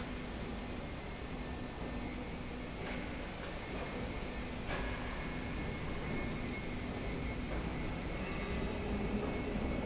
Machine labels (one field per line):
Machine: slide rail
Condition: normal